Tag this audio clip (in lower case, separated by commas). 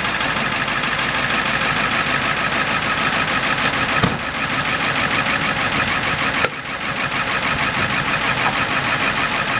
idling, motor vehicle (road), truck, vehicle